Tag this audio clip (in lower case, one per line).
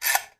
tools